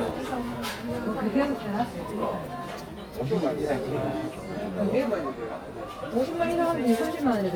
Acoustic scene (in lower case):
crowded indoor space